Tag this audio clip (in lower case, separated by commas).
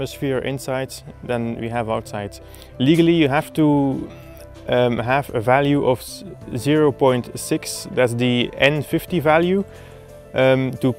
music, speech